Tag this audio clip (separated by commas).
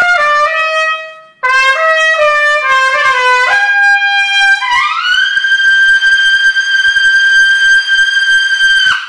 Music, Brass instrument, playing trumpet, Trumpet, Musical instrument